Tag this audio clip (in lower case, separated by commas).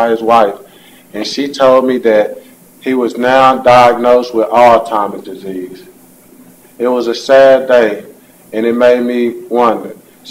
male speech, monologue, speech